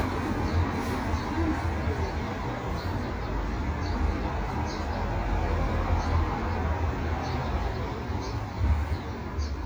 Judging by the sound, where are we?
in a residential area